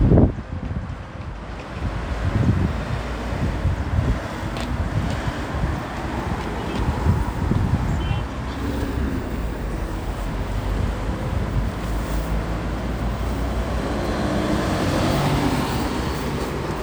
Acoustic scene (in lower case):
street